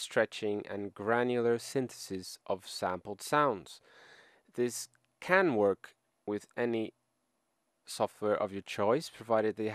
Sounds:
narration, speech

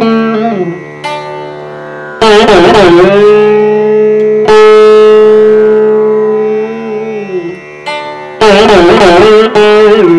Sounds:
carnatic music, sitar, music

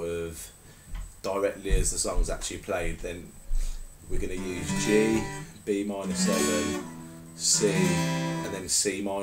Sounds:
musical instrument, plucked string instrument, guitar, music, strum, speech

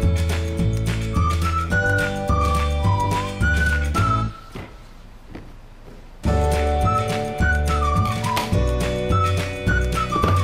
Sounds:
music

